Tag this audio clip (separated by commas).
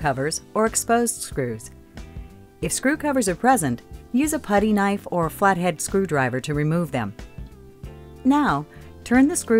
Music, Speech